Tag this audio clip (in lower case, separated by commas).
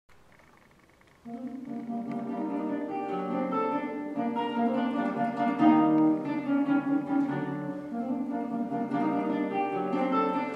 guitar, musical instrument, music, bowed string instrument, plucked string instrument